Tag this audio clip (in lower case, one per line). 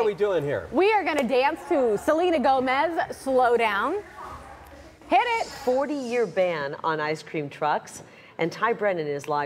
female speech